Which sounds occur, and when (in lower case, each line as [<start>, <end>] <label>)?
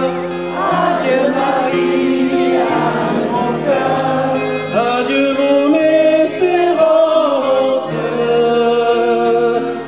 [0.00, 4.30] choir
[0.00, 9.85] music
[3.92, 4.02] tick
[4.69, 9.85] male singing
[5.64, 8.41] choir